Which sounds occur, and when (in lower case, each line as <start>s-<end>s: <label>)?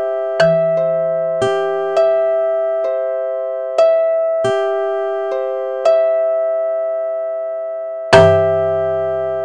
0.0s-9.4s: music